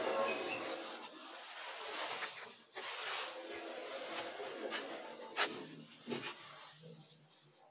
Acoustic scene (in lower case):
elevator